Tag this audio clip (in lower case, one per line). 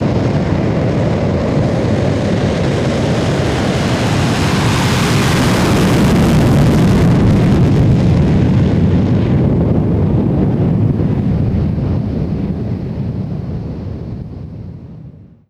aircraft
airplane
vehicle